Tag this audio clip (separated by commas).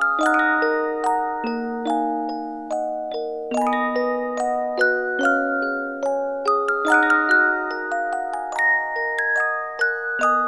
Theme music, Music